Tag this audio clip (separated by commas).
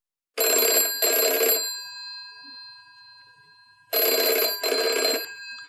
Alarm, Telephone